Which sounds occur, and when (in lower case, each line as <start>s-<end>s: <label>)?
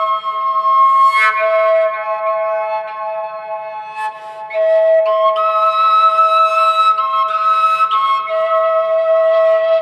0.0s-9.8s: music